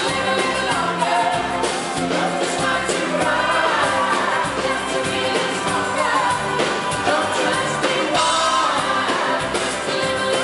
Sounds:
music

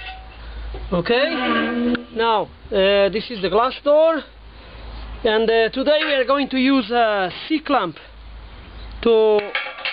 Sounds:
speech

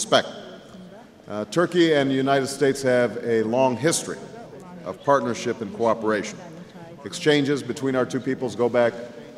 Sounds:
speech

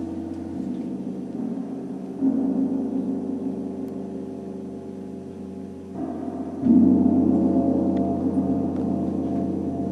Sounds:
gong

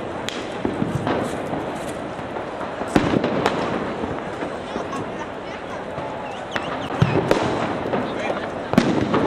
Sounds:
speech

